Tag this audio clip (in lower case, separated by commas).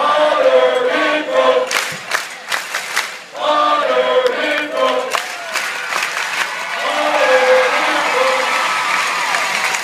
cheering, crowd